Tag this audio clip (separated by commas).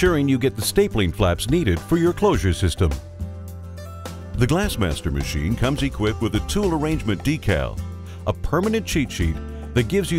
Music, Speech